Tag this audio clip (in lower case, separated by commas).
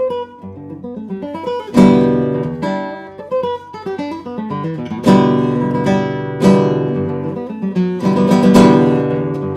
guitar, acoustic guitar, musical instrument, music, plucked string instrument